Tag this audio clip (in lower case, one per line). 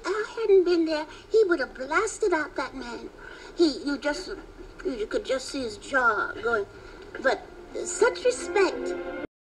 speech
music